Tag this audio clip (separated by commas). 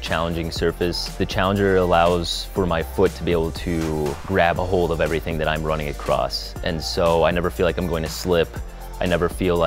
Speech, Music